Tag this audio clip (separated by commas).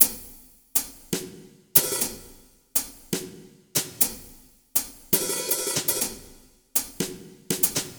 Musical instrument, Percussion, Drum, Snare drum, Music